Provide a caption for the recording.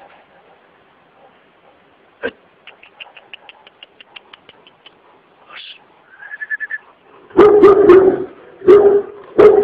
Male whistling with a dog breathing heavily followed by loud barking